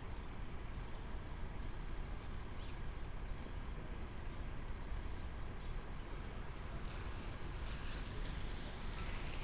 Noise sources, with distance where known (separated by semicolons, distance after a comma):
background noise